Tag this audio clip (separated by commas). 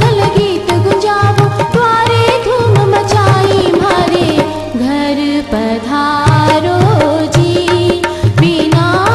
Music, Female singing